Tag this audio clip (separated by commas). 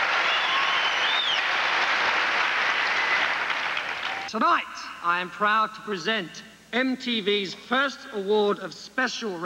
Speech